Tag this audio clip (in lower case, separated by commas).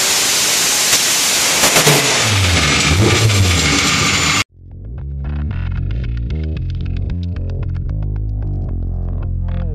car, vehicle, music